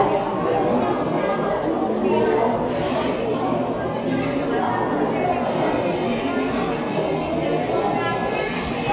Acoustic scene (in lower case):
cafe